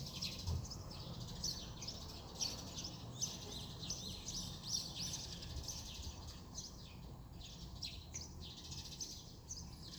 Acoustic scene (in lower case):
residential area